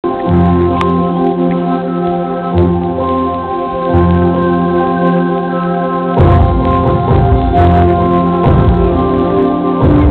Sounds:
Hammond organ, Organ

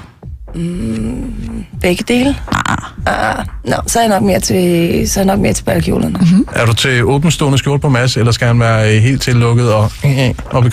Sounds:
Music, Speech

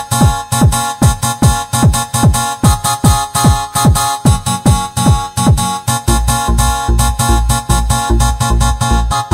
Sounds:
Music, Techno, Electronic music, Trance music

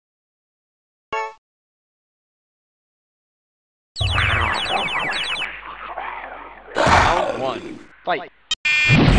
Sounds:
Speech

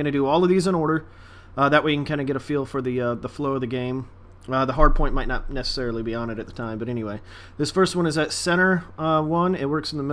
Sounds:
Speech

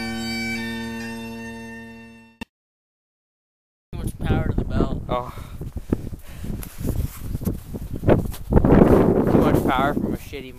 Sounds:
Music, Speech

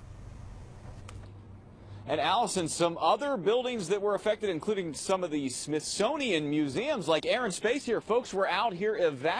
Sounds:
Speech

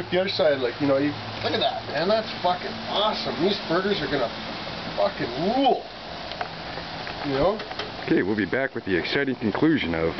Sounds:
Speech

